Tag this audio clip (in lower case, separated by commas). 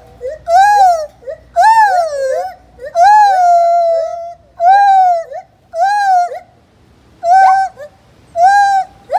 gibbon howling